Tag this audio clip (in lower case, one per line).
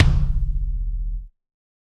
bass drum
drum
music
percussion
musical instrument